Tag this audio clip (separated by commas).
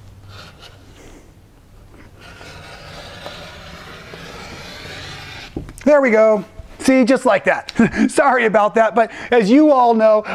Speech, inside a small room